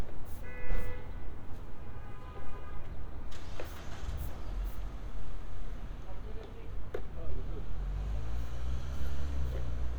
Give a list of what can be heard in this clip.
medium-sounding engine, car horn, person or small group talking